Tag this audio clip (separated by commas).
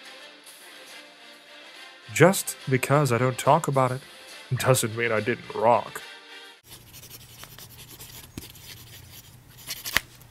Speech, Music